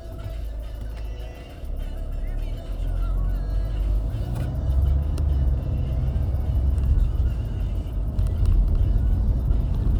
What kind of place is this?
car